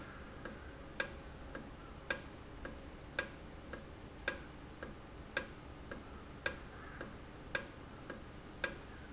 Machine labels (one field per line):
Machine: valve